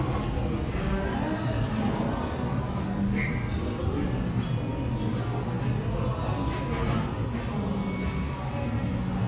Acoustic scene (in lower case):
cafe